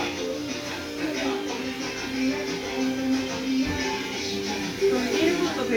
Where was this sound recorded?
in a restaurant